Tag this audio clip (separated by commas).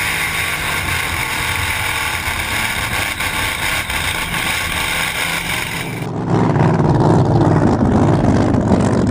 outside, rural or natural, Motorboat, Water vehicle, Vehicle